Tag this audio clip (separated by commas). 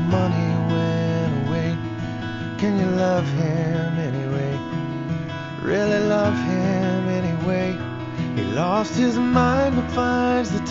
Music, Sad music